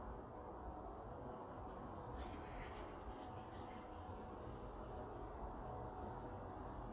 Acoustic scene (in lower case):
park